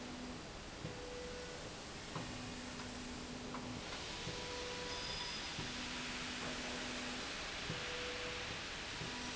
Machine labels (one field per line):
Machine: slide rail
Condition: normal